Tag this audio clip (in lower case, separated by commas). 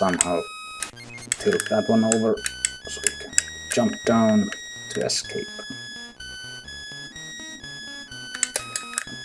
speech